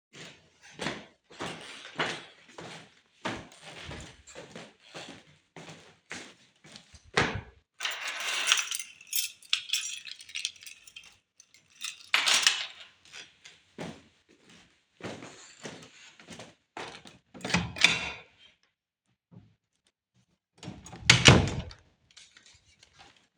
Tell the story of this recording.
I walked toward the entrance door. When I reached the door, I picked up my keychain, which caused the jingling. I opened it briefly and then closed it before walking away from the entrance.